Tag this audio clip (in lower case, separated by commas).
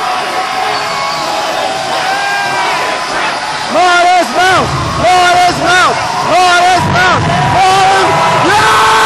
speech